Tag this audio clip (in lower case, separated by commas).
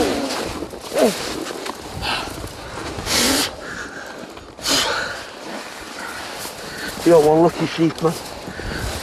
speech